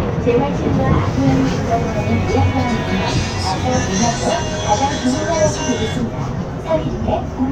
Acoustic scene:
bus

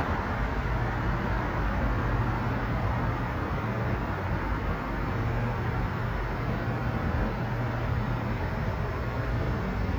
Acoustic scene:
street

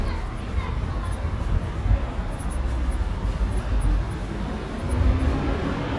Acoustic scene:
residential area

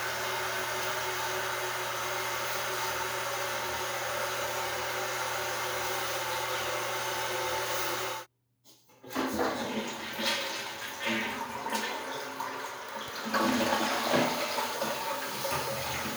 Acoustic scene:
restroom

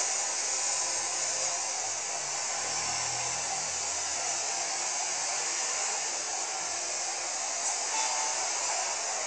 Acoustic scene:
street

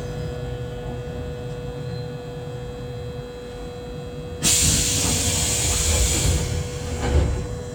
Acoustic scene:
subway train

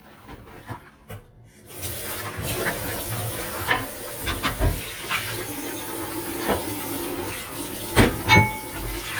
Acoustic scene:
kitchen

